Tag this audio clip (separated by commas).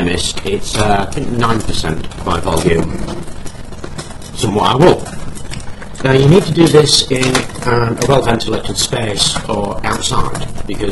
Speech